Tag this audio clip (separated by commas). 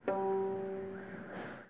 Musical instrument, Guitar, Plucked string instrument, Music